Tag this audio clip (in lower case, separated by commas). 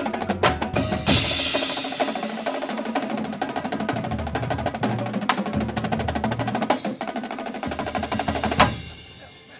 percussion, music